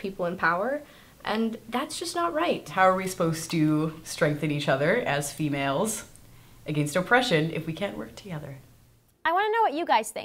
Two women speak in an interview